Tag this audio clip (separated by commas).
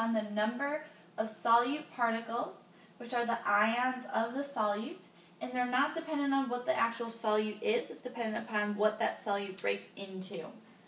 Speech